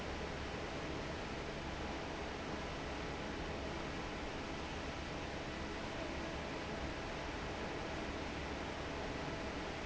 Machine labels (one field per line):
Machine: fan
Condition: normal